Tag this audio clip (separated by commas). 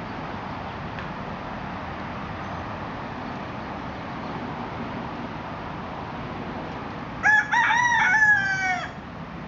Fowl, Crowing, chicken crowing, Chicken